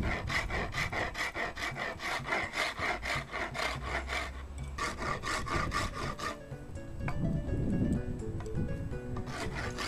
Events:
[0.00, 9.85] wind
[6.31, 9.85] music
[9.11, 9.22] generic impact sounds
[9.12, 9.85] filing (rasp)

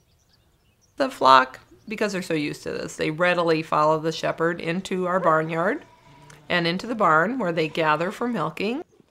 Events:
[0.01, 1.87] tweet
[0.85, 1.50] female speech
[1.82, 5.80] female speech
[6.28, 8.84] female speech

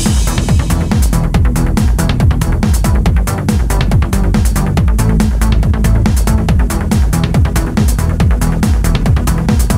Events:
[0.01, 9.75] music

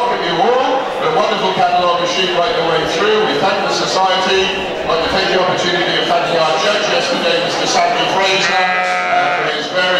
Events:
[0.00, 0.79] male speech
[0.00, 9.95] mechanisms
[0.96, 9.95] male speech
[8.35, 9.63] bleat

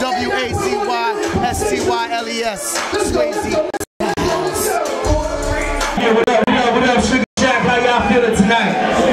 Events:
[0.00, 2.78] man speaking
[0.00, 3.81] rapping
[0.00, 3.83] music
[3.10, 3.84] man speaking
[3.96, 7.24] rapping
[3.98, 7.22] music
[5.96, 7.19] man speaking
[7.34, 8.77] man speaking
[7.34, 9.12] rapping
[7.37, 9.12] music
[7.37, 9.12] crowd

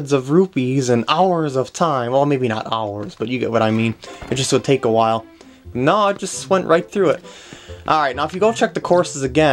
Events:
[0.00, 3.90] man speaking
[0.00, 9.52] background noise
[0.00, 9.52] video game sound
[2.92, 3.25] generic impact sounds
[3.58, 4.30] generic impact sounds
[3.99, 9.52] music
[4.26, 5.22] man speaking
[5.26, 5.62] breathing
[5.69, 7.19] man speaking
[6.09, 6.18] tick
[7.20, 7.82] breathing
[7.46, 7.54] tick
[7.84, 9.52] man speaking
[8.22, 8.33] tick

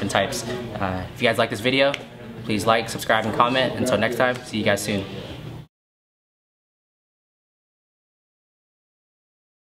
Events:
[0.00, 0.59] man speaking
[0.00, 5.65] mechanisms
[0.71, 1.02] man speaking
[1.14, 1.96] man speaking
[2.44, 4.98] man speaking

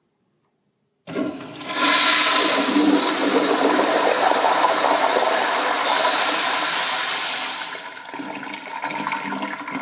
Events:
[0.00, 1.03] mechanisms
[0.38, 0.48] tick
[1.03, 9.81] toilet flush

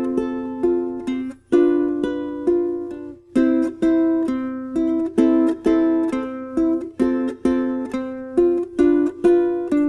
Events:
[0.00, 9.85] music

